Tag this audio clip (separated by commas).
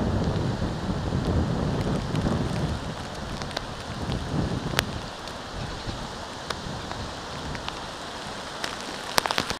Rain on surface